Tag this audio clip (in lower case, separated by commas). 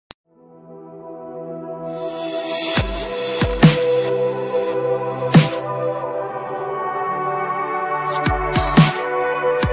ambient music, music